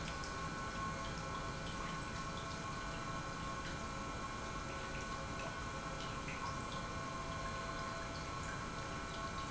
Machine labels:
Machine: pump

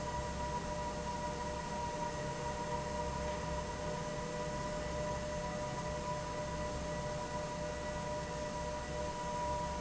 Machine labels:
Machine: fan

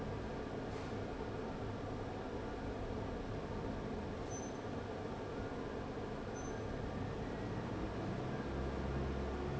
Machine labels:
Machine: fan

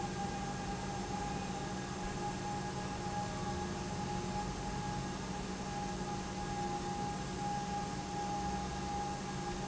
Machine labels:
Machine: pump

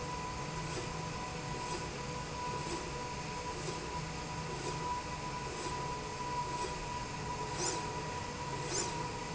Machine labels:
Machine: slide rail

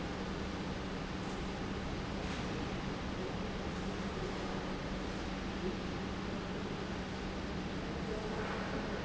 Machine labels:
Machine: pump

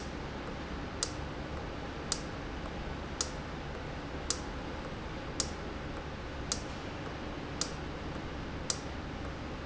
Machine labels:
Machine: valve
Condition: normal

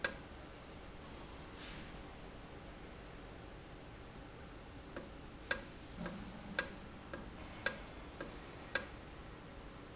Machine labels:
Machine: valve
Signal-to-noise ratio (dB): 6 dB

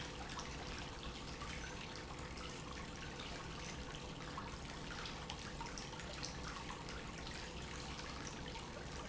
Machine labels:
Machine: pump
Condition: normal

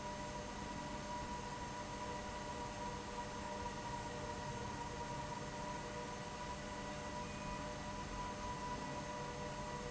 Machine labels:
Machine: fan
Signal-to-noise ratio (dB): 0 dB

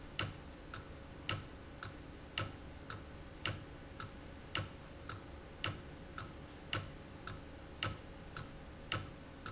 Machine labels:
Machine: valve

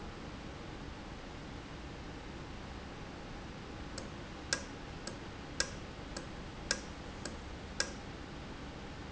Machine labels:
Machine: valve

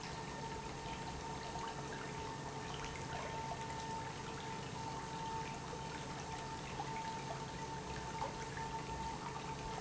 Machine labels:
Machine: pump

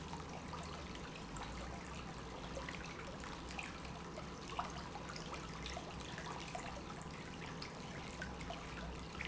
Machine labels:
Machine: pump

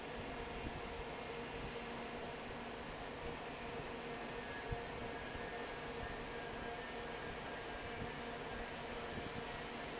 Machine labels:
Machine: fan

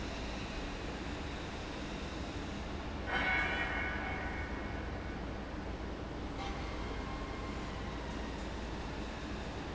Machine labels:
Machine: fan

